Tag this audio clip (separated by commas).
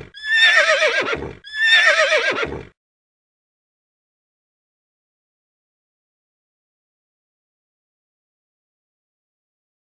horse neighing, whinny, Sound effect